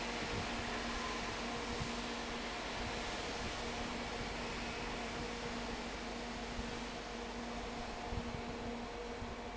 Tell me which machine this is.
fan